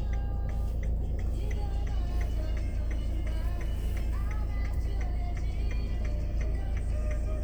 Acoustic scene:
car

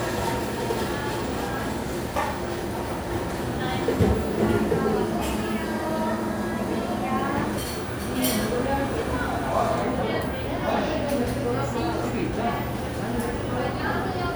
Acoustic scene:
cafe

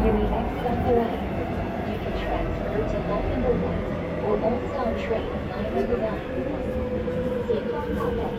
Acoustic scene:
subway train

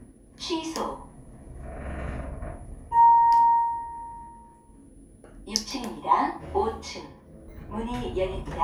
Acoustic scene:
elevator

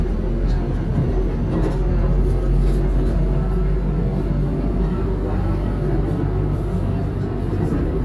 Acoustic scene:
subway train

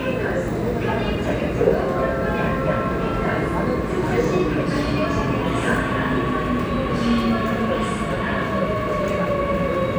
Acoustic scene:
subway station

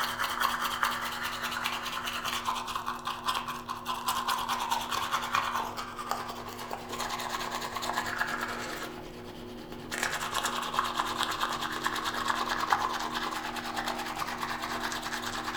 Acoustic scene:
restroom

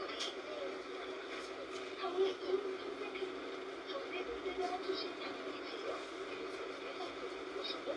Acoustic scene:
bus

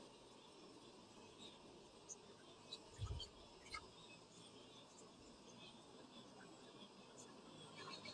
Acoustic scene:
park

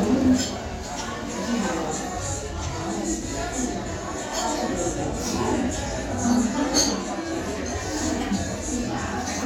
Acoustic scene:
restaurant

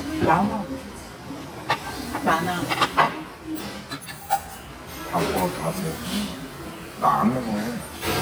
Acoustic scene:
restaurant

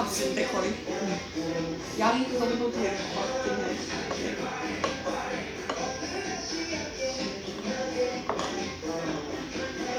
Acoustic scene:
restaurant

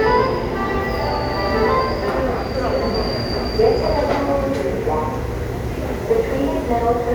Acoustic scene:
subway station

